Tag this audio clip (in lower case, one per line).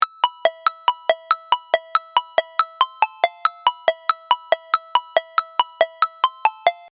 alarm
ringtone
telephone